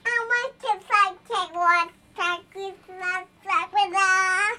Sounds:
Human voice, Speech

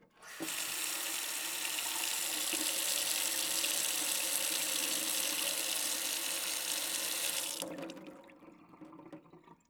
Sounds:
Domestic sounds, Sink (filling or washing), faucet

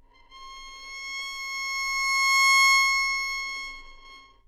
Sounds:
Bowed string instrument, Music, Musical instrument

